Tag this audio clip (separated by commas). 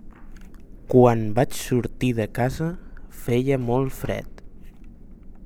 Human voice